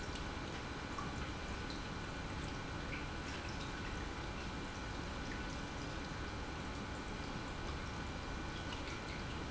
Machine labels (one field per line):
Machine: pump